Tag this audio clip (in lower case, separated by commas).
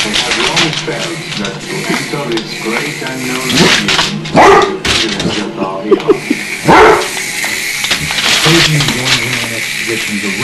speech